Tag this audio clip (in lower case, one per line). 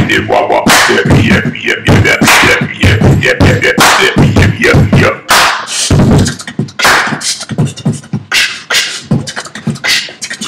beatboxing